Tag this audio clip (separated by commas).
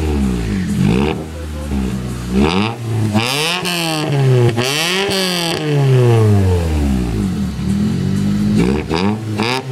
revving, Vehicle, Car